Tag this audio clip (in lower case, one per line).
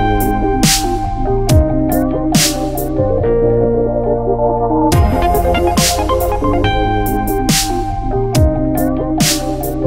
music
spray